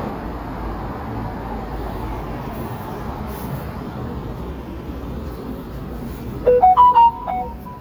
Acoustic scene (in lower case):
residential area